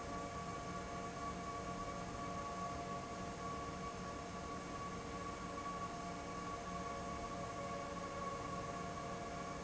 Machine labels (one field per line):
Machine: fan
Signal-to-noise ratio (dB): 0 dB